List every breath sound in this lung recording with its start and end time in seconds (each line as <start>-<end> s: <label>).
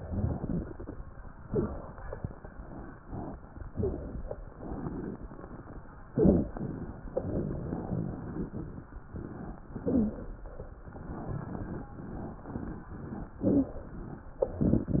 0.00-0.91 s: exhalation
0.00-0.91 s: crackles
1.46-1.75 s: wheeze
1.46-2.11 s: inhalation
3.72-4.23 s: inhalation
3.72-4.23 s: wheeze
4.57-5.20 s: exhalation
4.57-5.20 s: crackles
6.11-6.53 s: inhalation
6.11-6.53 s: wheeze
9.75-10.25 s: inhalation
9.75-10.25 s: wheeze
13.41-13.81 s: inhalation
13.41-13.81 s: wheeze